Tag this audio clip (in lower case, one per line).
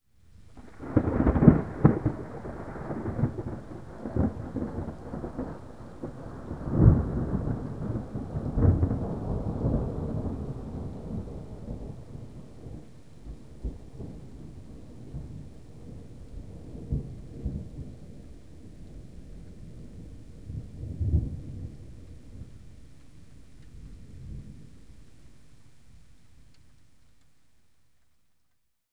thunder
thunderstorm